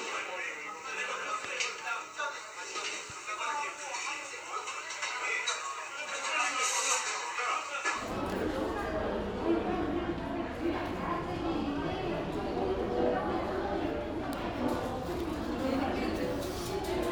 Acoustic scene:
restaurant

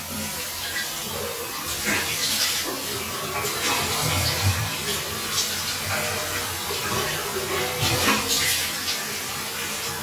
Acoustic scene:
restroom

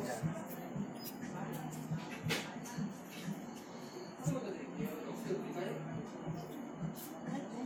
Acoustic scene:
cafe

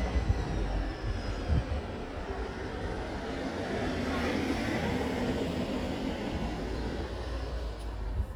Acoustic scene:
residential area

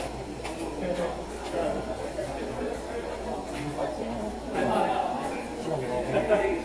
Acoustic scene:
subway station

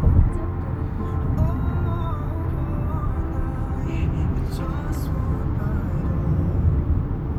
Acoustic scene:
car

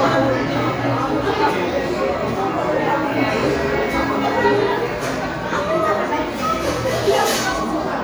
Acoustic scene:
crowded indoor space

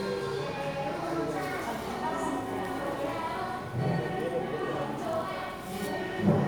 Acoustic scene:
crowded indoor space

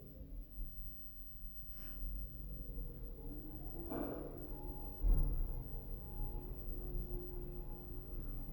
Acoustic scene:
elevator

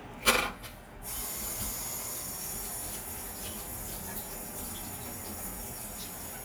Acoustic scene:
kitchen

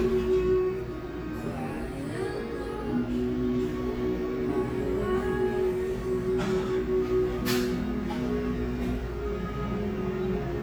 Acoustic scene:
cafe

